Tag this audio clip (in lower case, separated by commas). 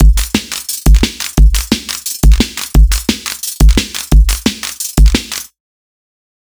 percussion, drum kit, musical instrument, music